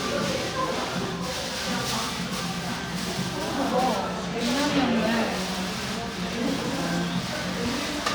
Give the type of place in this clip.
cafe